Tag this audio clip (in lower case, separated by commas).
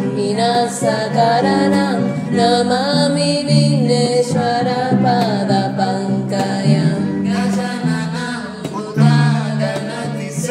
mantra, music